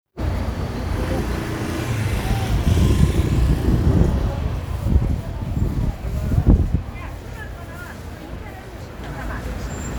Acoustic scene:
residential area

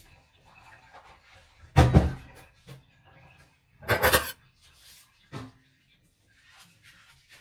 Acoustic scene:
kitchen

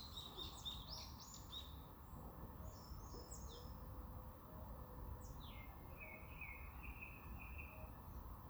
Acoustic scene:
park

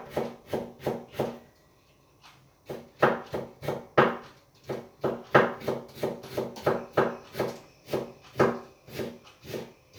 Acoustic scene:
kitchen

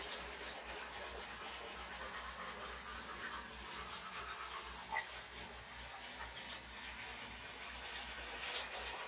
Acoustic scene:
restroom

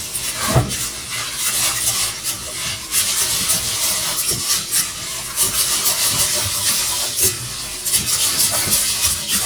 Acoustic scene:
kitchen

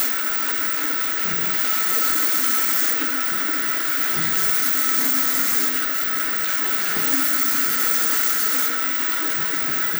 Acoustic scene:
restroom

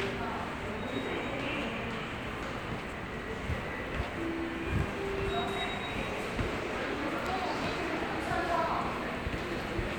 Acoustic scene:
subway station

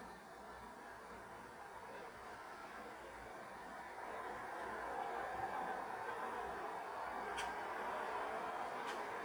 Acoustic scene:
street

